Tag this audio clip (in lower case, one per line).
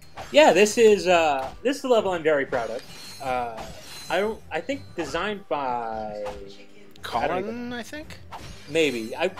speech